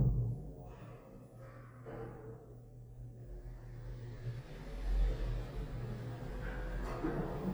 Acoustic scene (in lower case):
elevator